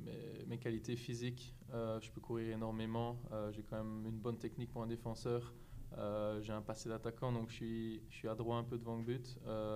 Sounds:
Speech

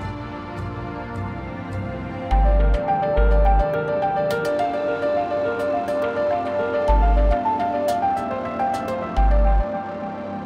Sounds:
Music

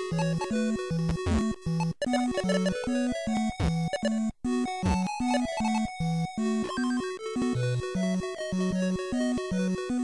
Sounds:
Music, Video game music

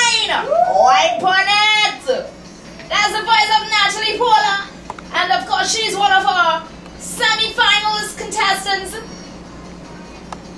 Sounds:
Speech

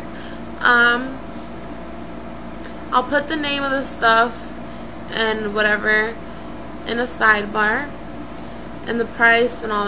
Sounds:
Speech, inside a small room

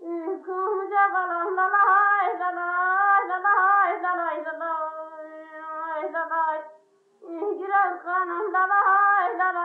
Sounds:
Music, Lullaby

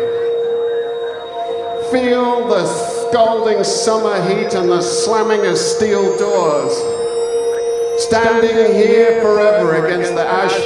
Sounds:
Music, Speech

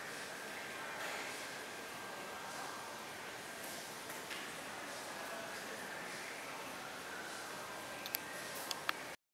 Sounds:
inside a large room or hall, inside a public space, Music

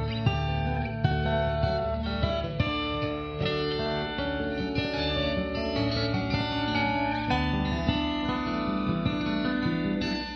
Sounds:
Music, slide guitar

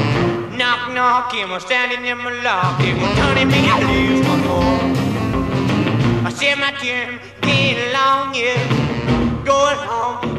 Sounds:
Music

